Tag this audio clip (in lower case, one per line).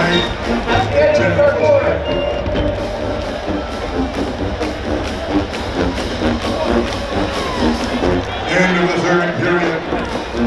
people marching